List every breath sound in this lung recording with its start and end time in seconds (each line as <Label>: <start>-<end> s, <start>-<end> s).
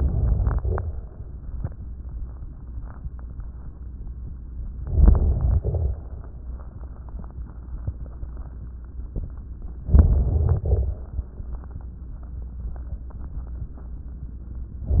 Inhalation: 4.80-5.61 s, 9.92-10.63 s
Exhalation: 5.62-6.47 s, 10.65-11.32 s
Crackles: 5.62-6.47 s